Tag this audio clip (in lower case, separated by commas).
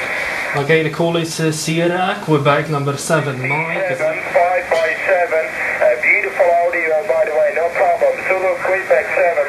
speech